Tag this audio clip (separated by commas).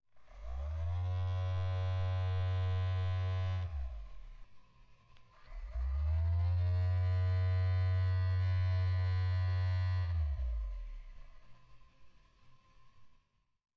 Telephone, Alarm